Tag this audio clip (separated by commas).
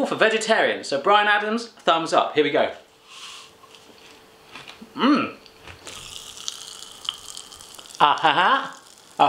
Speech, inside a small room